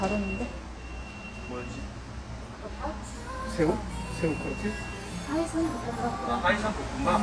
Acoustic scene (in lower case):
restaurant